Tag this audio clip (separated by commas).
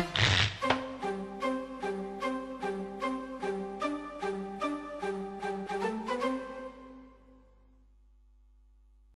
Music